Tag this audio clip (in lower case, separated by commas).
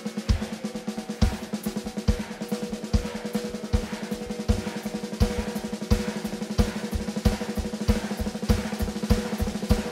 music, rock and roll